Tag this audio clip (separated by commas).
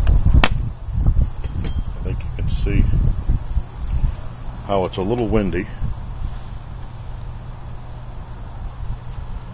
Speech